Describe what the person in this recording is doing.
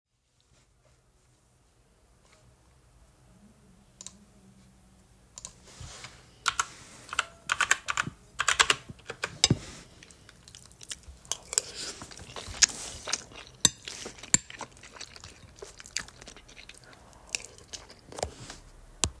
eating dinner while writing emails back most of them were replies back related to studies and the courses i was assigned to